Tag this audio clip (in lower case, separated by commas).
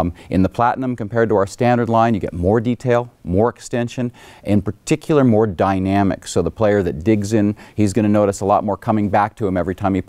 speech